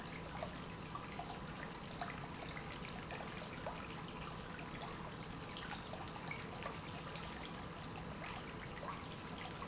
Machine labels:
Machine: pump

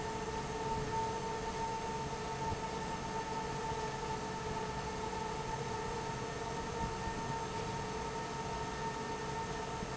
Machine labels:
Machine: fan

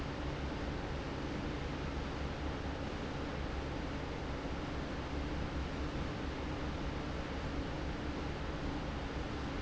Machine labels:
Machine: fan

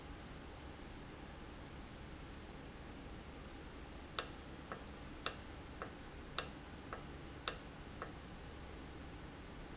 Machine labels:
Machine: valve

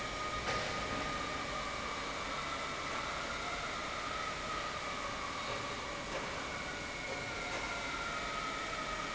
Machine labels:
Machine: pump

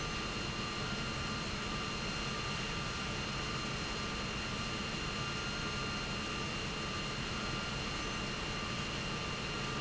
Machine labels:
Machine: pump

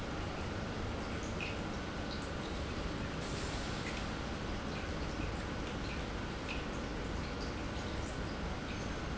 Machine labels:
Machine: pump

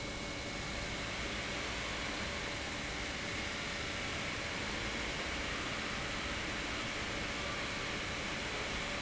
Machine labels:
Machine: pump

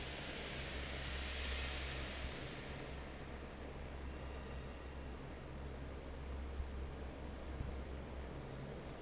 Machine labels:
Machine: fan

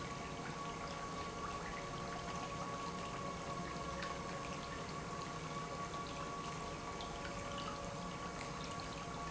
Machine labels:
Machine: pump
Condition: normal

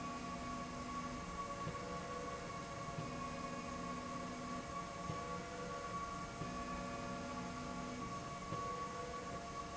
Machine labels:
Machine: slide rail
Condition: normal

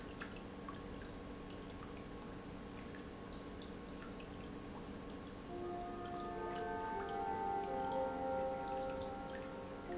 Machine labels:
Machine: pump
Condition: normal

